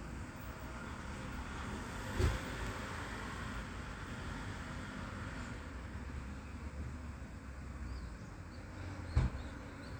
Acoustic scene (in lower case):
residential area